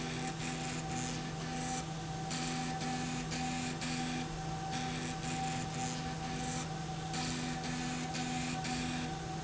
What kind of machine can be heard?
slide rail